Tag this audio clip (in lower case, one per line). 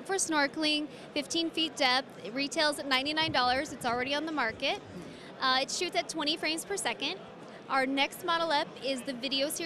speech